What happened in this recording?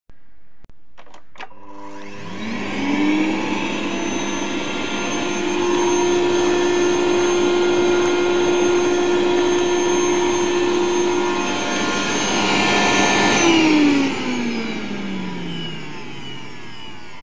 I turned on the vacuum cleaner and vacuuming some dust then I turned it off